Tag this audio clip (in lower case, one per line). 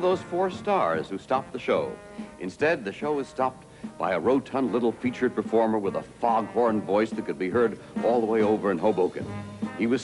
speech
music